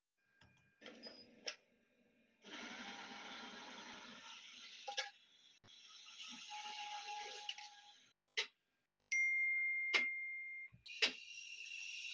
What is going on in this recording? A coffee machine starts brewing, then a notification sound is heard.